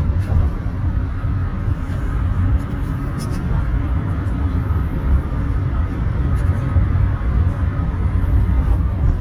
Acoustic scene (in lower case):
car